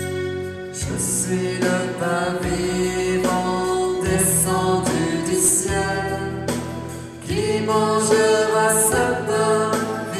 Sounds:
music

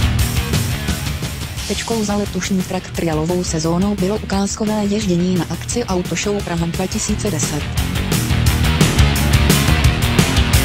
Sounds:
music
speech

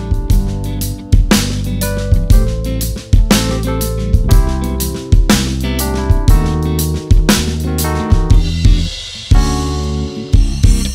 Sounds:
playing bass drum

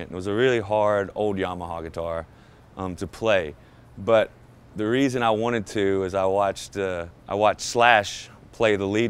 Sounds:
speech

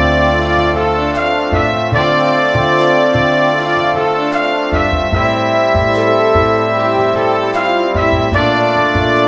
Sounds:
music

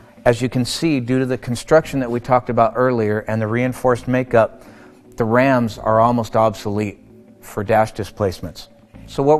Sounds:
speech

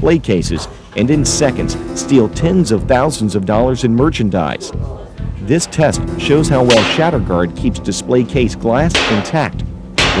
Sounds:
music
speech

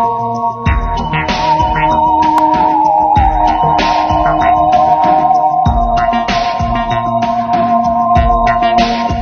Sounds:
scary music
music

